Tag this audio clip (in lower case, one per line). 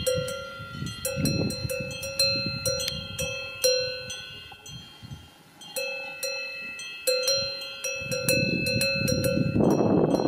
cattle